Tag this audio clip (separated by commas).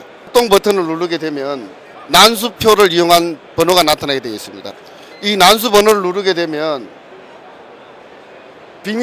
Speech